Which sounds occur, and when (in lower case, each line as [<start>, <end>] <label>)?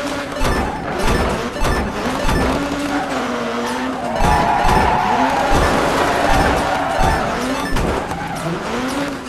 [0.00, 9.25] car
[0.00, 9.25] video game sound
[8.03, 8.53] tire squeal
[8.31, 9.19] vroom